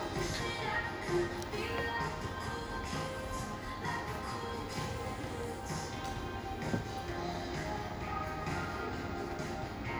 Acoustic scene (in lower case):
cafe